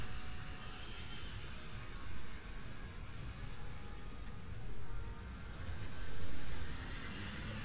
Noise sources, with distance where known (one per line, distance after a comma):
engine of unclear size, far
car horn, far